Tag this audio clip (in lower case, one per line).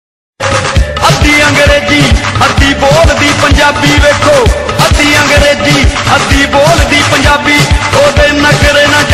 music